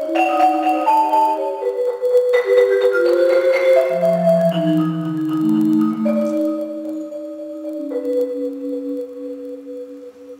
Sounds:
xylophone, Music

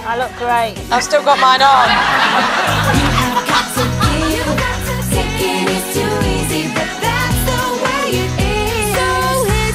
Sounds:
Pop music, Speech, woman speaking, Music

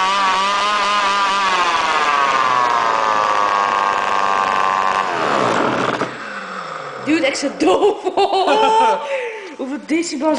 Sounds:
Speech, Chainsaw

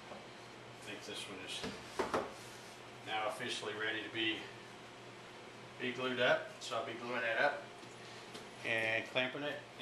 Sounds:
Speech, inside a small room

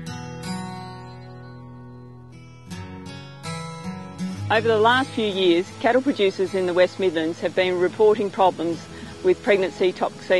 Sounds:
Music, Speech

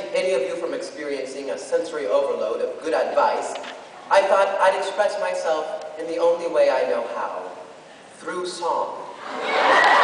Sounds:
Male speech, Narration, Speech

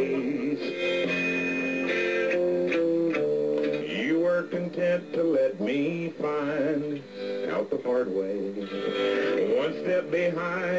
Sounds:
Music

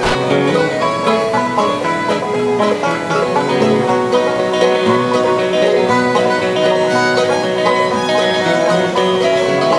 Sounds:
Music, Country

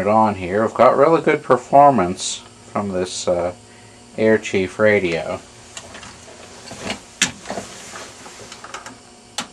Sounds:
Radio, Speech

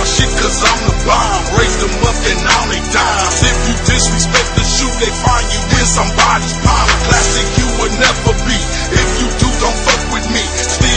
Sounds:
Music

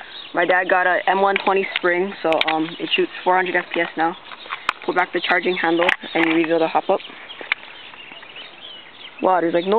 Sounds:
Speech, outside, rural or natural

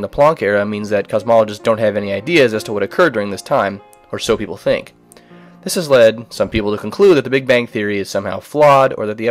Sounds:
Speech

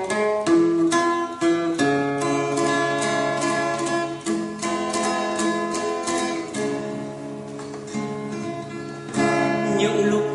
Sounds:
Music, Soundtrack music

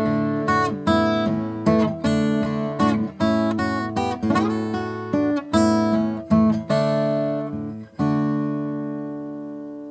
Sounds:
Music

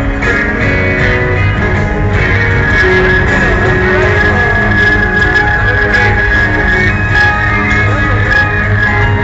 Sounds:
Music

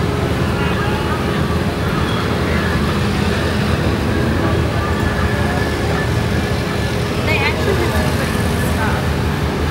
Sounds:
roadway noise, Bus

